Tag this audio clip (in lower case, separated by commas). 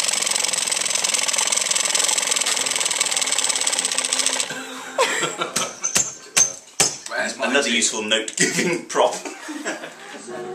speech, inside a small room